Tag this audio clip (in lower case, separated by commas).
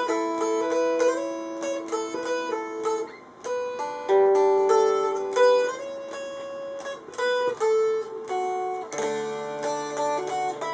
music, guitar, plucked string instrument, musical instrument, inside a small room